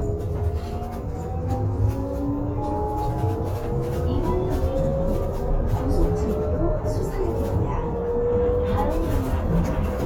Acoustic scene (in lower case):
bus